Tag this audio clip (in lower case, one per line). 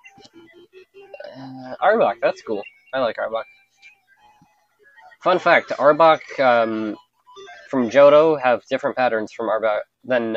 speech